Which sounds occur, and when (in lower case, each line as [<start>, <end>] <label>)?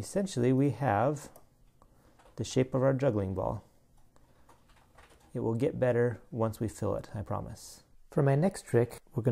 [0.00, 1.27] male speech
[0.00, 9.31] background noise
[1.08, 1.41] generic impact sounds
[1.60, 2.41] generic impact sounds
[2.36, 3.58] male speech
[3.91, 5.33] generic impact sounds
[5.32, 6.16] male speech
[6.30, 7.84] male speech
[8.11, 8.98] male speech
[9.12, 9.31] male speech